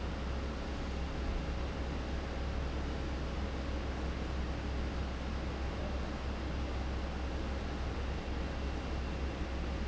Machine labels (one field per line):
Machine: fan